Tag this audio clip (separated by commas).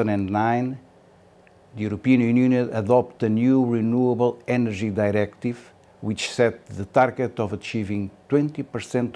Speech